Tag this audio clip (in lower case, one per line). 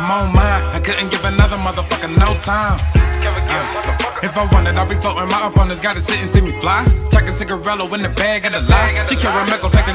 music